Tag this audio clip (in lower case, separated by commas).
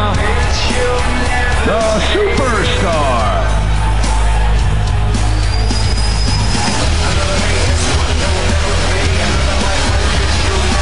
music, speech